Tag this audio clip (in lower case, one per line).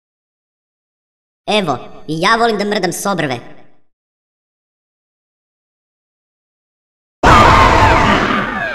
silence
speech